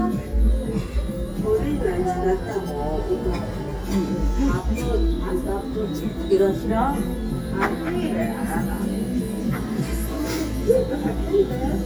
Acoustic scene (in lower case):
restaurant